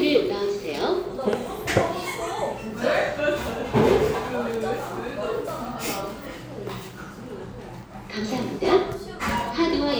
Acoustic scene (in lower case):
cafe